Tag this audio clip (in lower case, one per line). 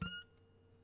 music
musical instrument
harp